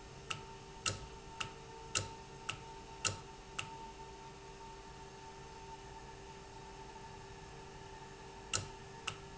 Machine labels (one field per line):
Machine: valve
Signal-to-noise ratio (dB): 6 dB